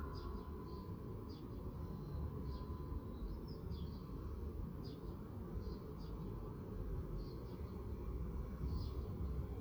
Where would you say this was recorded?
in a park